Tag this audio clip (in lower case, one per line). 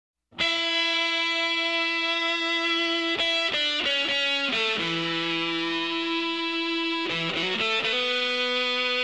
electric guitar